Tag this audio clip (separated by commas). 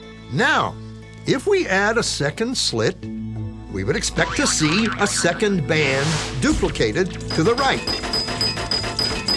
Speech, Music